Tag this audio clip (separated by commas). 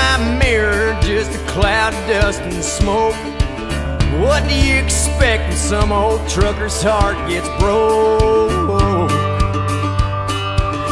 Music